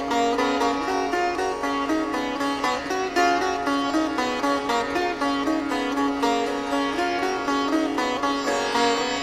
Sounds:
music, sitar

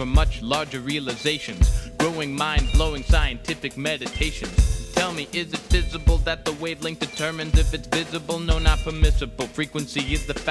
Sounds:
soundtrack music, music

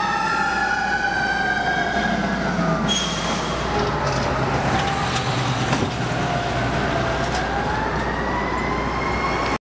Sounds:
heavy engine (low frequency), car, vehicle

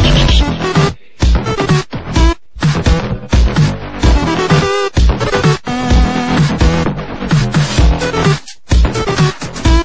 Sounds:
blues, music

